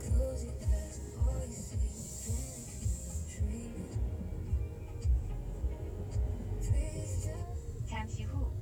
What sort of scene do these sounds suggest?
car